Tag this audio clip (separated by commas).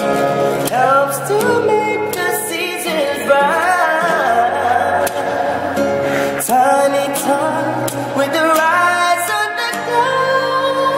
Music